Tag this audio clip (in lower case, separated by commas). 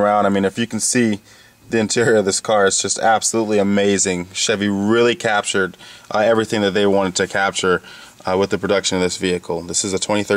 speech